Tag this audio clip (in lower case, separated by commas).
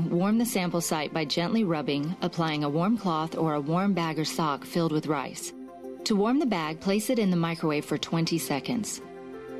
speech, music